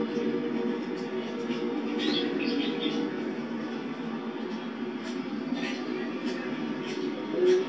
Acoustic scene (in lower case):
park